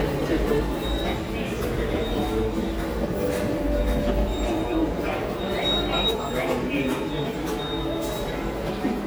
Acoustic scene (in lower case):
subway station